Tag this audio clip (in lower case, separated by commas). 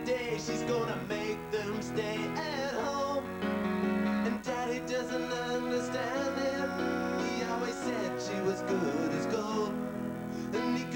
music